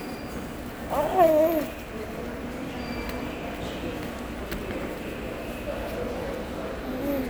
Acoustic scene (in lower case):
subway station